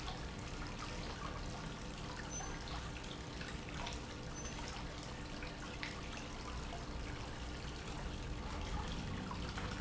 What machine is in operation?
pump